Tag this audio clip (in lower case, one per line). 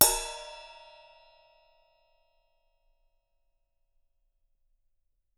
musical instrument
cymbal
crash cymbal
music
percussion